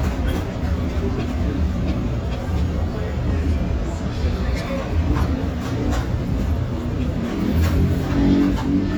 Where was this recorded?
in a restaurant